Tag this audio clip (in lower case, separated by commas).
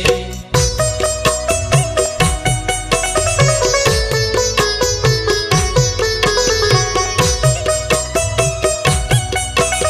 sitar